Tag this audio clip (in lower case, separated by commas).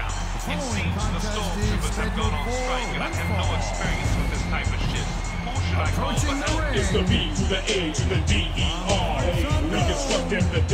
speech, music